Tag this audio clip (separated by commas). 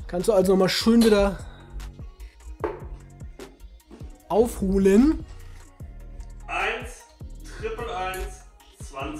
playing darts